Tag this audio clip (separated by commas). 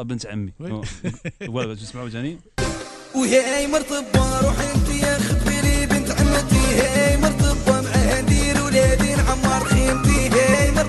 Radio, Music, Speech